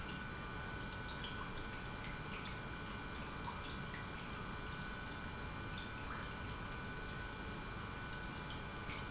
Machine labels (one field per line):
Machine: pump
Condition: normal